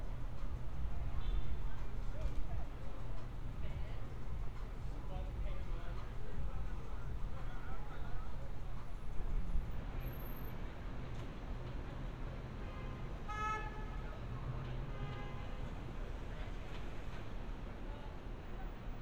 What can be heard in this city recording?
car horn